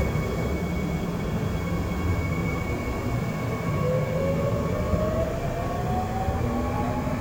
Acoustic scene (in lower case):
subway train